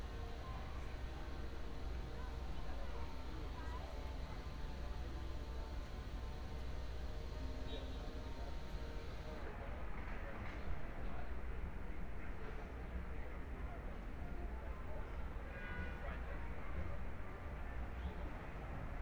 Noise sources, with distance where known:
car horn, far

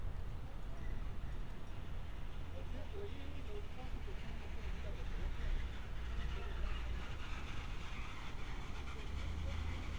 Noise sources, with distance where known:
person or small group talking

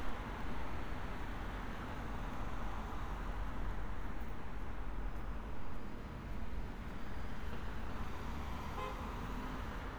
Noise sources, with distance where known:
medium-sounding engine, near
car horn, near

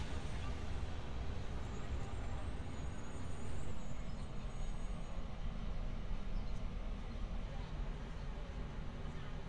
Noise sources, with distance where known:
engine of unclear size
car horn, far

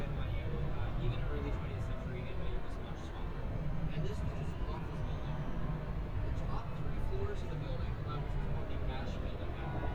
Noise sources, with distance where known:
person or small group talking, near

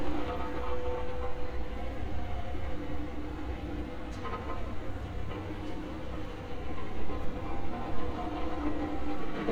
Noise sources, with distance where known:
engine of unclear size

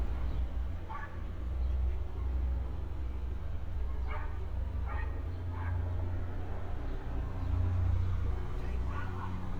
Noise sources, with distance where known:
dog barking or whining, far

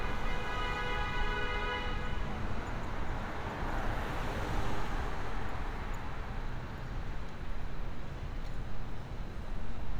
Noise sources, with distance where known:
engine of unclear size
car horn

